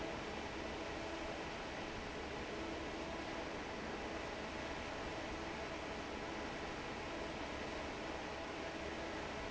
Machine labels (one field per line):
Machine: fan